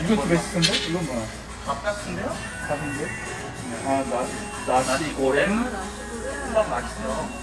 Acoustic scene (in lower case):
restaurant